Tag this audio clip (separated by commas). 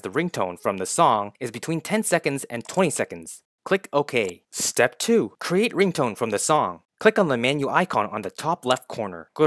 Speech